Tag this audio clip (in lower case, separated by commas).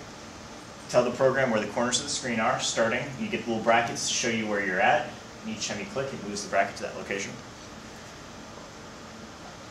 speech